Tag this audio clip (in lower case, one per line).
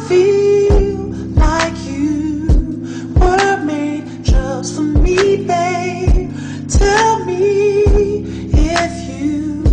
music
soul music